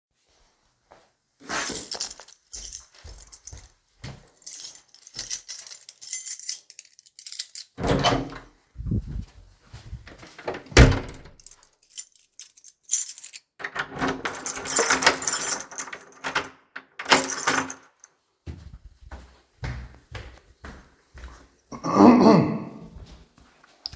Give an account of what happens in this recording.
I grabbed my keys, walked through the door of my apartment, and locked it. Then I cleared my throat.